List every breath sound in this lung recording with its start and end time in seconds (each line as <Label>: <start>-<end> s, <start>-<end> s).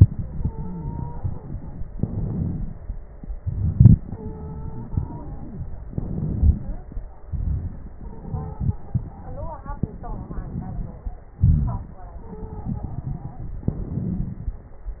Inhalation: 1.89-3.38 s, 5.88-7.29 s, 9.68-11.37 s, 13.65-15.00 s
Exhalation: 3.40-5.92 s, 7.32-9.64 s, 11.39-13.63 s
Wheeze: 0.50-1.35 s, 4.90-5.67 s, 11.39-11.96 s
Stridor: 0.14-1.74 s, 4.11-4.90 s, 8.01-9.07 s, 12.23-13.03 s
Crackles: 1.89-3.38 s, 5.88-7.29 s, 9.68-11.37 s, 13.65-15.00 s